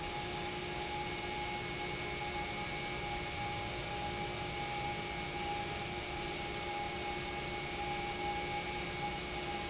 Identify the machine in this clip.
pump